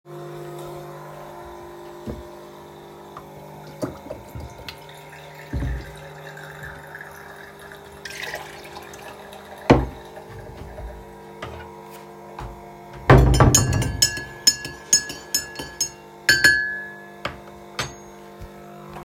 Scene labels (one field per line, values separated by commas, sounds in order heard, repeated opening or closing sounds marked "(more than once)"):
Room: kitchen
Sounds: coffee machine, running water, cutlery and dishes